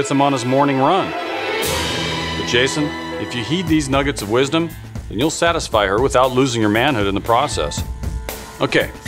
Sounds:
Speech, Music

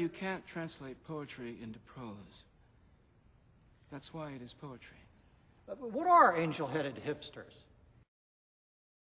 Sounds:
Speech

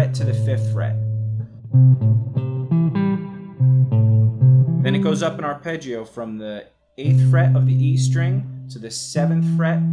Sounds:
Plucked string instrument, Reverberation, Speech, Music, Guitar, Musical instrument

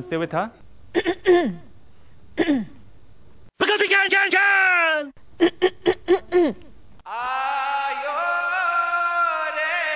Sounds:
Speech, inside a small room

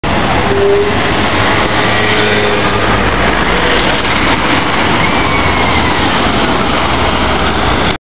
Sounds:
Vehicle, Bus

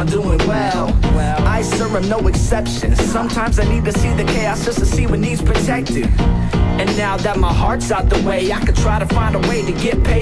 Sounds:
Music

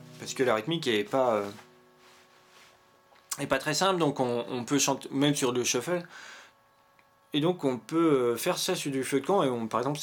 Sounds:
Speech

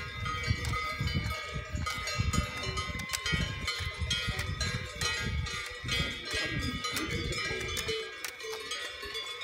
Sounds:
bovinae cowbell

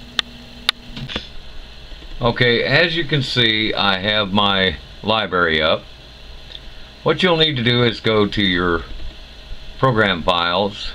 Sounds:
Speech

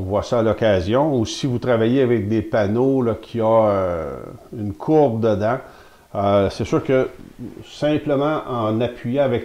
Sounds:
planing timber

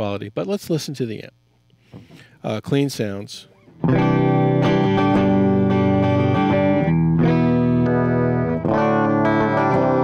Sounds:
Distortion, Music, Guitar, Plucked string instrument, Speech, Musical instrument, Effects unit

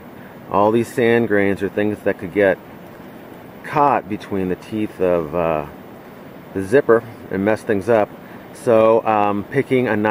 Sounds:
Speech

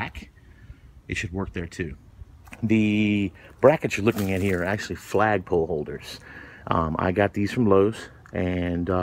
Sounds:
Speech

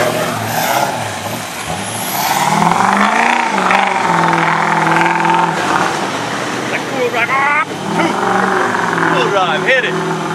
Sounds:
Truck, Vehicle, auto racing, Speech

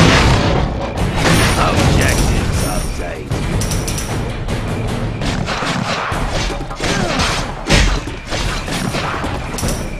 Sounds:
Music, Speech

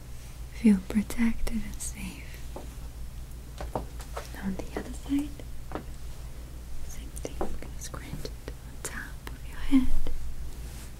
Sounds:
people whispering

